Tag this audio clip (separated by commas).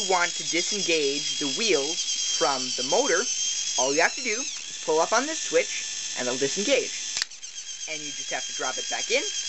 Mechanisms, pawl